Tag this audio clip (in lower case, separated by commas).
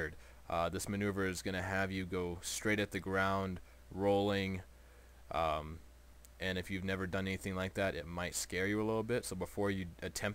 speech